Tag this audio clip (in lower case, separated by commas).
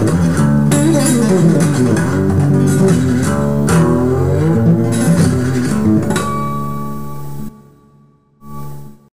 plucked string instrument, guitar, musical instrument, music